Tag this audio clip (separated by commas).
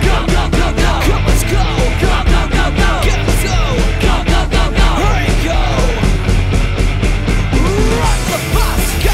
Music